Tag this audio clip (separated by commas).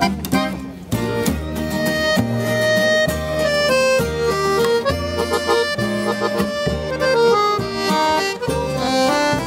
Music, Guitar, Musical instrument, Violin